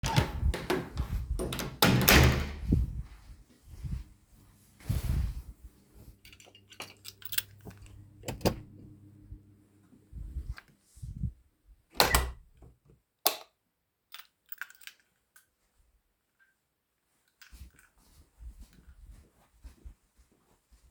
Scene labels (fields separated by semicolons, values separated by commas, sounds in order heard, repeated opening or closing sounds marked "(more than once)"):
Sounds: door (more than once), footsteps, light switch, keys